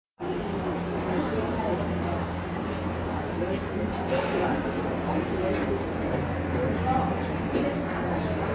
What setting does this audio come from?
subway station